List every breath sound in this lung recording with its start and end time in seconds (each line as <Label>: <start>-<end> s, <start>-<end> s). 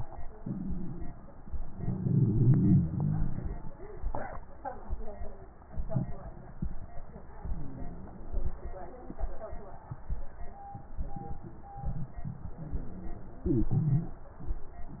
Inhalation: 0.38-1.16 s, 7.41-8.47 s, 12.60-13.66 s
Wheeze: 0.38-1.16 s, 7.41-8.47 s, 12.60-13.66 s